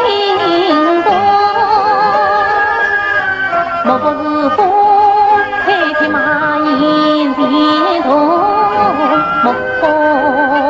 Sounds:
Music

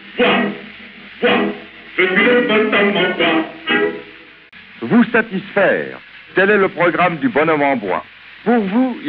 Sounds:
Radio, Speech, Music

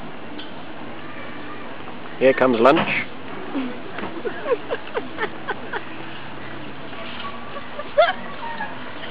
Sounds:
Speech

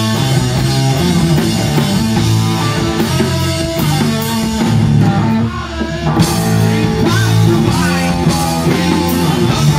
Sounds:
Music

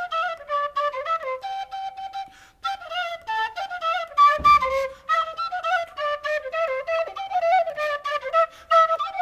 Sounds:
Music

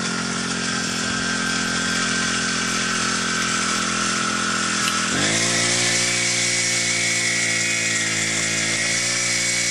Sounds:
Chainsaw

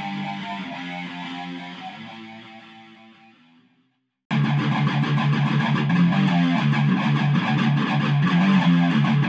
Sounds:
Music, Plucked string instrument, Electric guitar, Musical instrument, Guitar

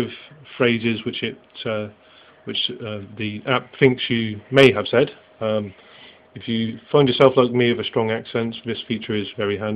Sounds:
Male speech, Speech

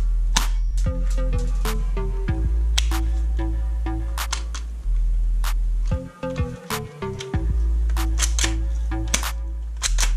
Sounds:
cap gun shooting

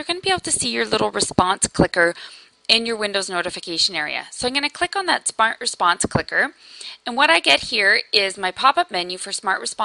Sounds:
Speech

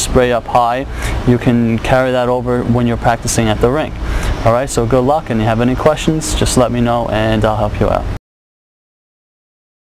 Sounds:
Speech

